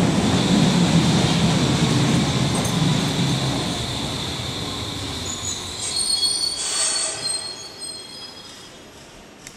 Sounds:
subway

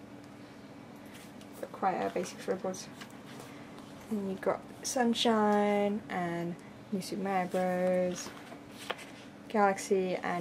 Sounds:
speech, inside a small room

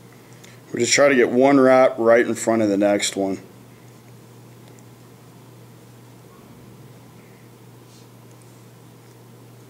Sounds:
inside a small room, speech

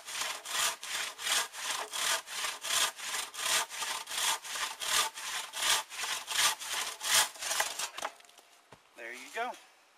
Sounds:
sawing, wood

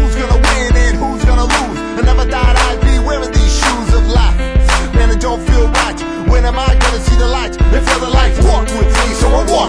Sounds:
exciting music, music

